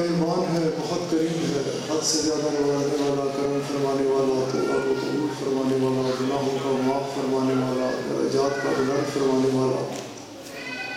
Male voice speaking in a foreign language in a large room or auditorium